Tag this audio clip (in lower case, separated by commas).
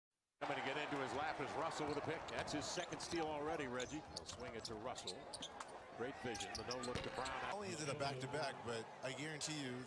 speech